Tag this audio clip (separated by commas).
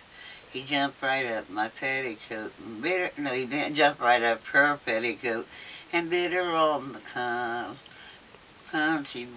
Speech